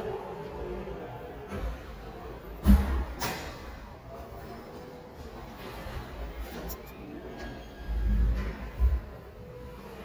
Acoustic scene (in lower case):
elevator